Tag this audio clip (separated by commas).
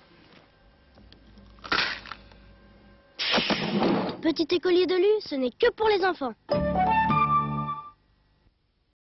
Speech, Music